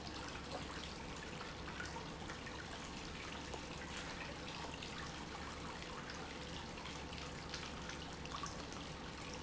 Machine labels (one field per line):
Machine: pump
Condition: normal